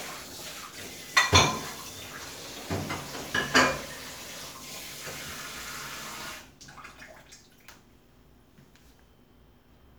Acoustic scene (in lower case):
kitchen